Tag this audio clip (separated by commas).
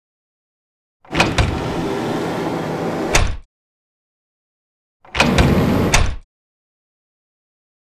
Domestic sounds, Sliding door, Door